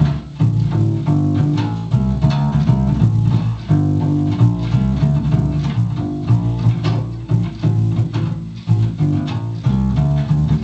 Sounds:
playing double bass

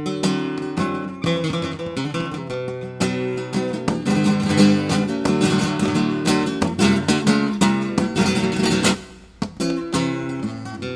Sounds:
Musical instrument, Plucked string instrument, Guitar, Music

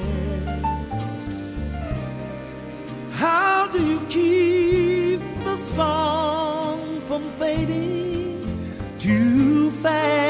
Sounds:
Music, Tender music

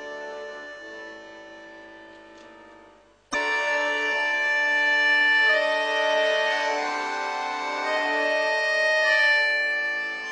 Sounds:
Accordion, Music, Musical instrument

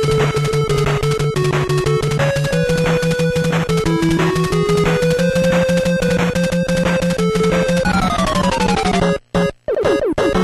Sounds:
Music

